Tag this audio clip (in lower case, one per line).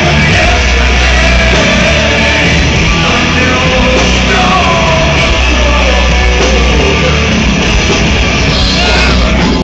music